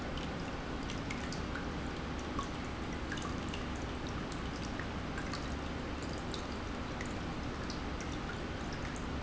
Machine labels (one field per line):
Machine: pump